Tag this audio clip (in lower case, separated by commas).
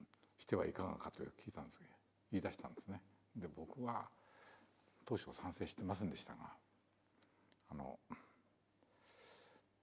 speech